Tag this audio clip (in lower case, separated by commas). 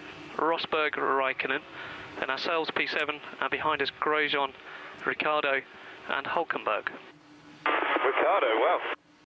speech, radio